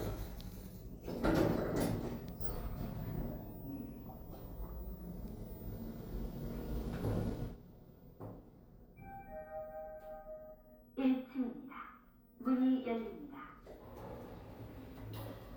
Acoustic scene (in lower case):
elevator